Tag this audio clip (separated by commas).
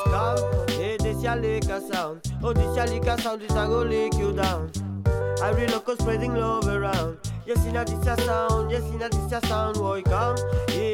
Music